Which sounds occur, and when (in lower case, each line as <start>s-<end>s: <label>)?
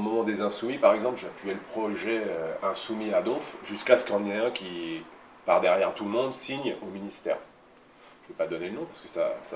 0.0s-5.0s: male speech
0.0s-9.5s: mechanisms
4.2s-4.3s: tick
5.5s-7.5s: male speech
6.5s-6.6s: tick
7.7s-7.8s: tick
7.9s-8.2s: breathing
8.2s-8.3s: tick
8.3s-9.5s: male speech